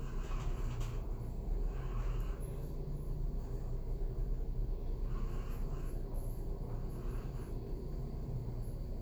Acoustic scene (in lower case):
elevator